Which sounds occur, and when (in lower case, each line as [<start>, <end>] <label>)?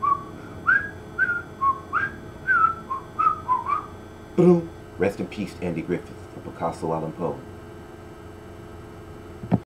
[0.00, 0.31] whistling
[0.00, 9.65] mechanisms
[0.37, 0.60] breathing
[0.67, 0.96] whistling
[1.18, 1.46] whistling
[1.62, 2.24] whistling
[2.46, 3.04] whistling
[3.19, 3.85] whistling
[4.39, 4.75] male speech
[5.03, 6.10] male speech
[6.43, 7.48] male speech
[9.42, 9.65] generic impact sounds